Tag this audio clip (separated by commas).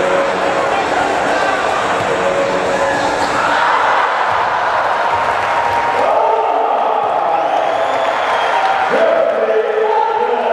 Speech